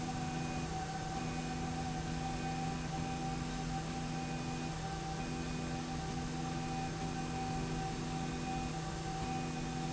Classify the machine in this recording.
slide rail